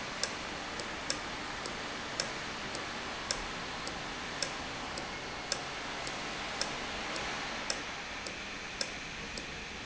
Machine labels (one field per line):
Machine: valve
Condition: normal